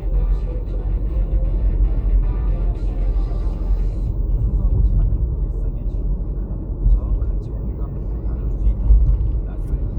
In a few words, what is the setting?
car